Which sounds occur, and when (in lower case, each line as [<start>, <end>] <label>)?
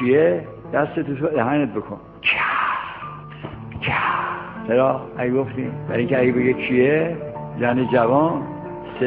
[0.00, 0.46] man speaking
[0.00, 9.05] music
[0.68, 1.95] man speaking
[2.15, 3.03] human sounds
[3.76, 4.52] human sounds
[4.61, 4.97] man speaking
[5.14, 5.67] man speaking
[5.86, 7.22] man speaking
[7.45, 8.44] man speaking